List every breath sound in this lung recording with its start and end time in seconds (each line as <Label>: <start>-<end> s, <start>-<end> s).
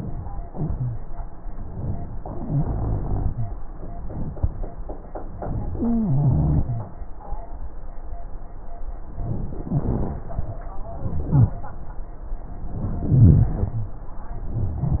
Inhalation: 2.24-3.53 s, 5.81-6.93 s, 9.37-10.25 s, 10.93-11.80 s, 12.77-14.02 s
Wheeze: 0.49-1.05 s, 2.22-3.57 s, 5.81-6.93 s, 9.73-10.29 s, 11.04-11.60 s, 13.04-14.03 s, 14.55-15.00 s